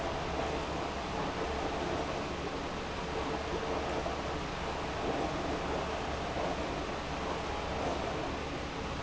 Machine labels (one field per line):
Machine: pump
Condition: abnormal